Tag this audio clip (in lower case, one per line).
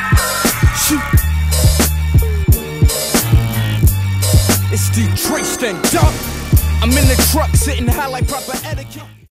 music